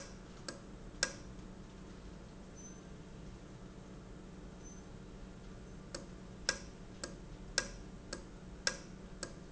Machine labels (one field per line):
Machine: valve